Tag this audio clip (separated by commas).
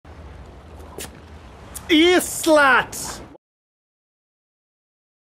Speech